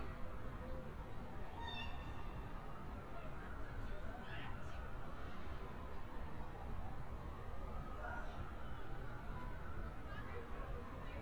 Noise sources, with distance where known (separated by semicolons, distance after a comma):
person or small group talking